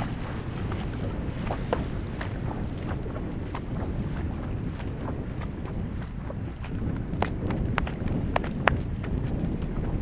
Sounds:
outside, rural or natural, horse, animal

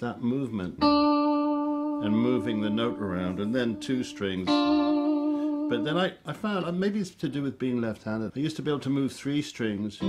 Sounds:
music, musical instrument, speech, plucked string instrument, guitar, strum

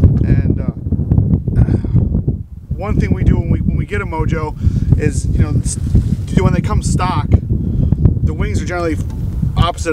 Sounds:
speech

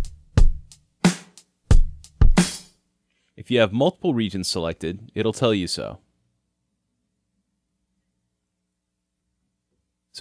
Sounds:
speech, music, drum, musical instrument, drum kit

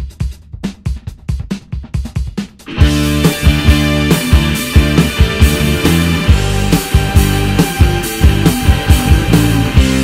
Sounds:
music

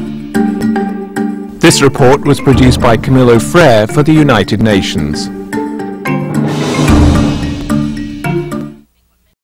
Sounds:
percussion, music, speech

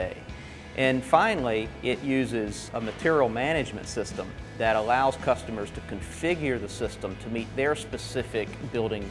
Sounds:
music, speech

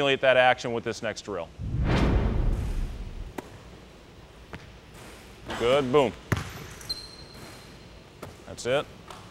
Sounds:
speech, dribble

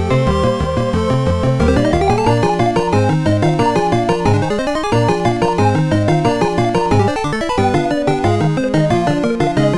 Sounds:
theme music, music

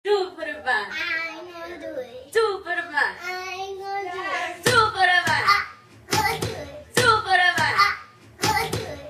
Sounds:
music, hands, speech, thud, thunk

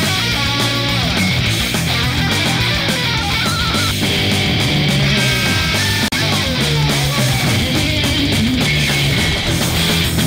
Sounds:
electric guitar, music, plucked string instrument, musical instrument, strum, guitar

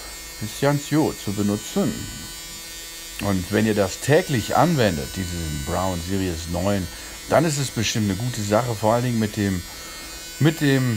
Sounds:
electric shaver

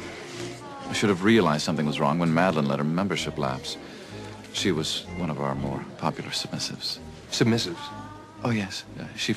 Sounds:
music, speech

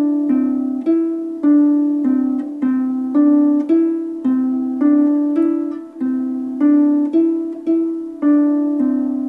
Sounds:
playing harp

